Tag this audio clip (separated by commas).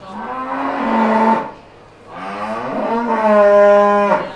Animal, livestock